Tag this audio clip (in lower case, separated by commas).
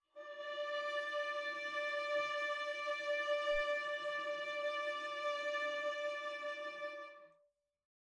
bowed string instrument, musical instrument, music